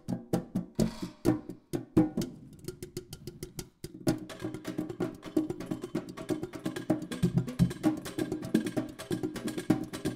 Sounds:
Music

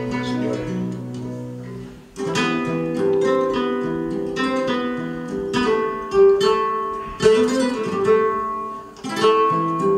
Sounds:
Music, Flamenco

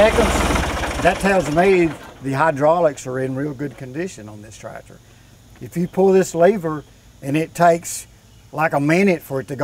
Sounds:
Speech, Vehicle

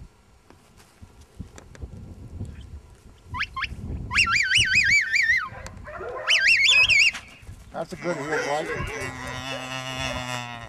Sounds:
Animal, pets, livestock, Speech, Dog

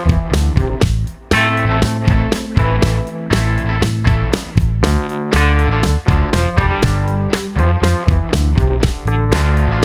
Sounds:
Music

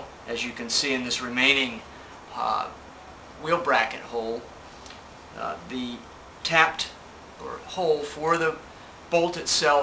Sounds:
Speech

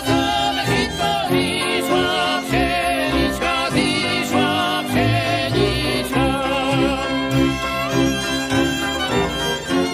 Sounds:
Folk music, Music

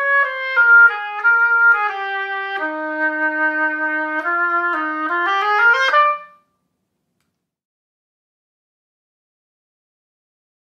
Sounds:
playing oboe

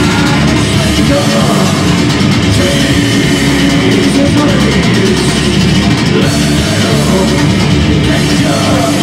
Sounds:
Drum, Rock music, Music, Heavy metal, Musical instrument

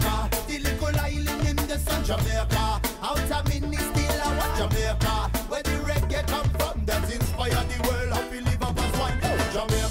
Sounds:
Funk, Music

